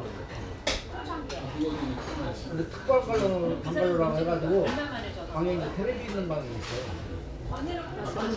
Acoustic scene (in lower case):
restaurant